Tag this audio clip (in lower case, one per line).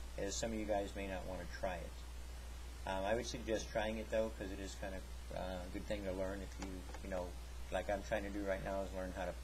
speech